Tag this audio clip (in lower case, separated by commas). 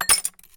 crushing